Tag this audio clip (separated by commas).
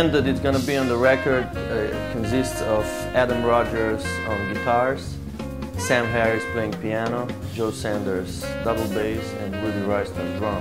Music, Speech